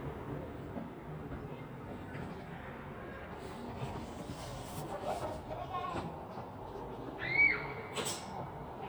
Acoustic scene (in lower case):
residential area